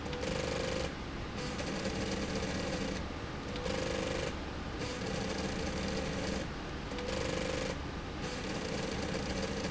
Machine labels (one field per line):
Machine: slide rail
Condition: abnormal